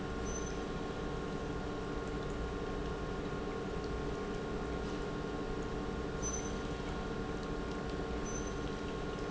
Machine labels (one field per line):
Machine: pump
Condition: normal